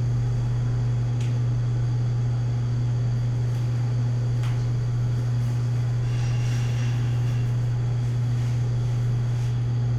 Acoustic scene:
elevator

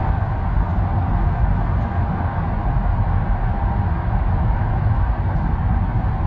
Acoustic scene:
car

